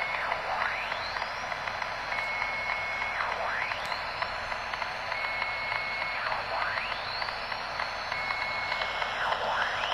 Faint, muffled beeping